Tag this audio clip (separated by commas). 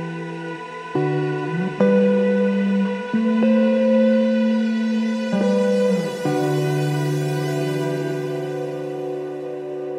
Ambient music, Music